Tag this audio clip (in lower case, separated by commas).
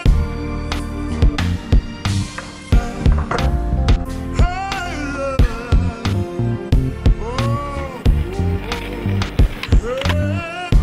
skateboard, music